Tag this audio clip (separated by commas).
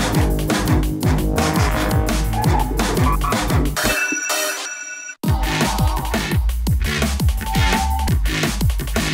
Techno, Electronic music, Music, Video game music